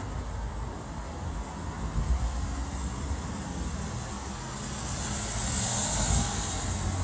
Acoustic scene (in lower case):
street